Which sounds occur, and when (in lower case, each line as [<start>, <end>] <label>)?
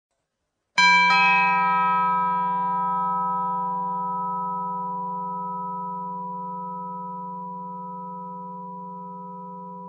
[0.07, 0.72] background noise
[0.73, 9.85] doorbell